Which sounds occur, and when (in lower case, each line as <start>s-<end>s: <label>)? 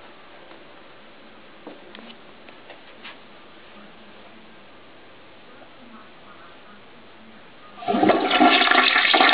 0.0s-9.3s: television
0.4s-0.6s: generic impact sounds
0.8s-2.2s: speech
1.6s-2.2s: generic impact sounds
2.4s-2.7s: generic impact sounds
2.8s-3.2s: generic impact sounds
2.9s-4.6s: speech
5.3s-7.8s: speech
7.8s-9.3s: toilet flush